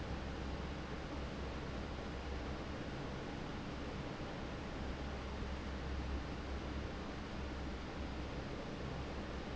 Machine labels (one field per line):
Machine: fan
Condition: normal